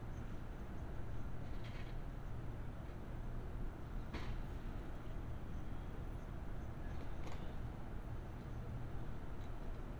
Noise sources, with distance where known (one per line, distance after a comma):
background noise